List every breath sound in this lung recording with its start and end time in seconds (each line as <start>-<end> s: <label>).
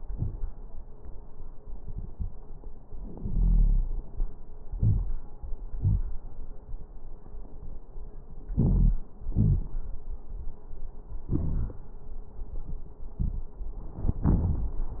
3.22-4.00 s: wheeze
4.71-5.08 s: inhalation
4.71-5.08 s: crackles
5.76-6.00 s: exhalation
5.76-6.00 s: crackles
8.55-9.09 s: inhalation
8.55-9.09 s: wheeze
9.30-9.66 s: exhalation
9.30-9.66 s: wheeze
11.35-11.80 s: wheeze